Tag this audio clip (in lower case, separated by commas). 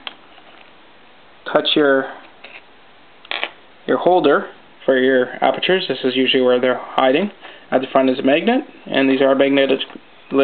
inside a small room, speech